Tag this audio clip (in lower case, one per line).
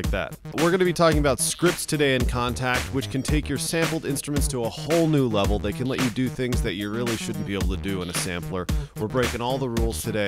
music
speech